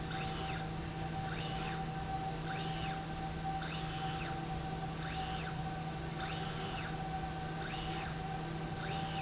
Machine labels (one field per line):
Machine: slide rail